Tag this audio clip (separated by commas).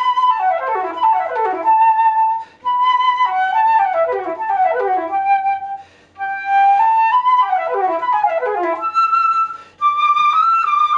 playing flute, Music, Flute